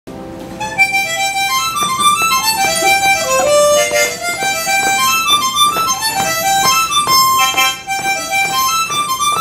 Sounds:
playing harmonica

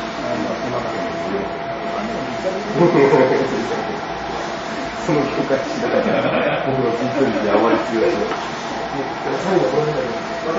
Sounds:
printer, speech

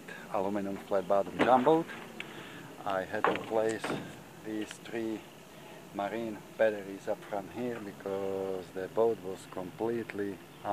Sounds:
speech

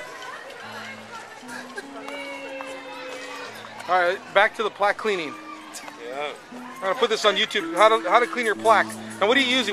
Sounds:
music, speech

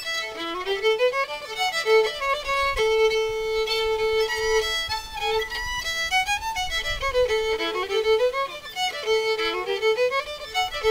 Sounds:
fiddle, musical instrument, music

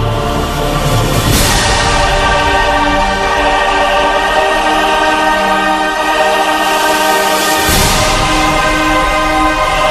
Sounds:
new-age music, music

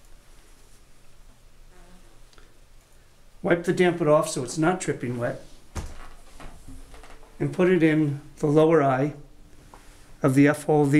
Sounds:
speech

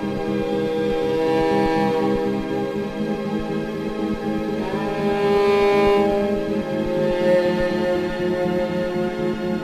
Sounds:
musical instrument, fiddle, music

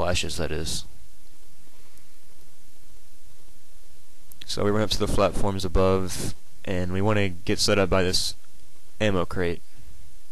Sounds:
speech

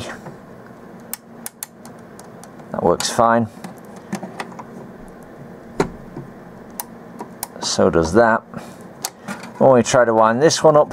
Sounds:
speech, tick-tock

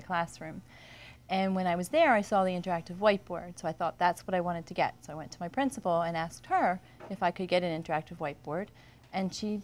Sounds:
speech

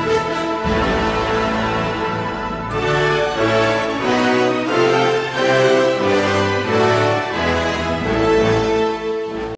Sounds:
independent music, music

